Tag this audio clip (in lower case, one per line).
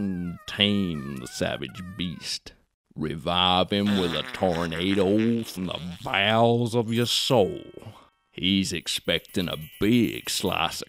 housefly
insect
mosquito